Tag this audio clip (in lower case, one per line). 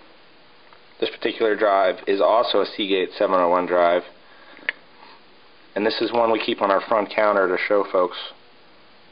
speech